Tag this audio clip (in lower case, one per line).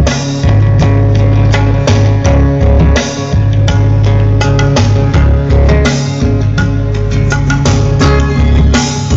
music
musical instrument